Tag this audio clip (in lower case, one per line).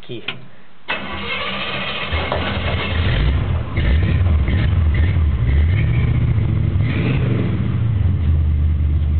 vehicle
car
revving